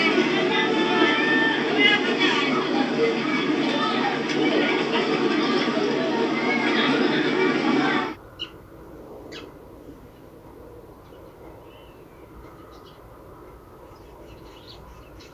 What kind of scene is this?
park